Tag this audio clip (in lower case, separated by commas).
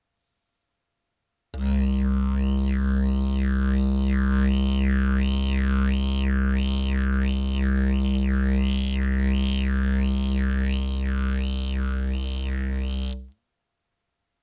musical instrument, music